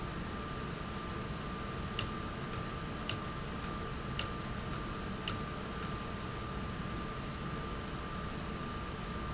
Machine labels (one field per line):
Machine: valve